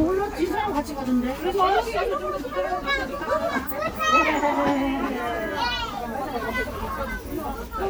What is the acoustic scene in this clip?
park